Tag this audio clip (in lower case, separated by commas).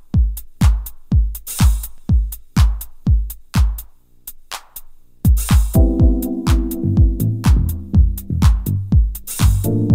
music, drum machine